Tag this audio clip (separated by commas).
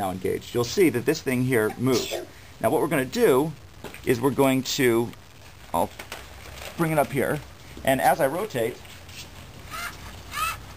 Speech